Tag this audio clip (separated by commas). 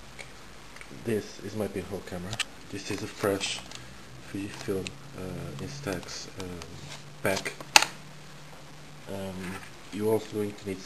Speech